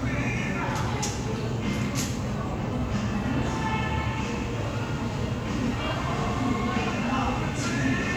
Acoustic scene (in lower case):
crowded indoor space